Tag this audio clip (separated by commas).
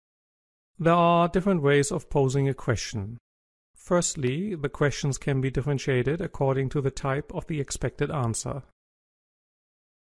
Speech